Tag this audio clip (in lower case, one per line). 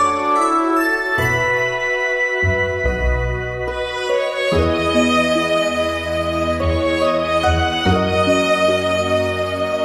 music
sad music